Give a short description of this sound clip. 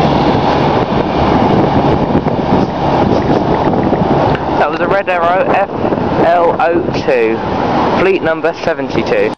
Wind rumbling and he is speaking